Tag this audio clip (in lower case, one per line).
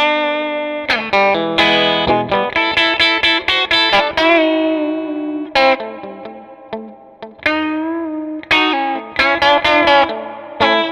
music